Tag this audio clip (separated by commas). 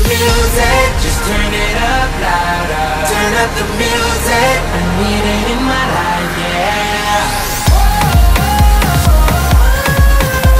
Disco, Music